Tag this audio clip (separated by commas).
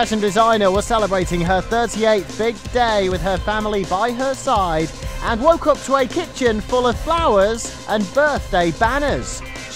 Speech, Music